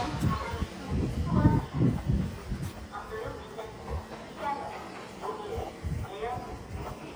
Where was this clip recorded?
in a residential area